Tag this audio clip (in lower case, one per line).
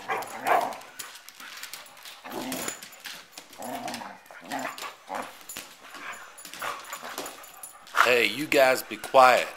dog bow-wow
speech
bow-wow